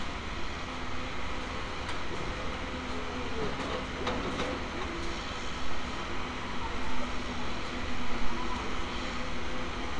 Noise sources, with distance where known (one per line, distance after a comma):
engine of unclear size, near
unidentified human voice, far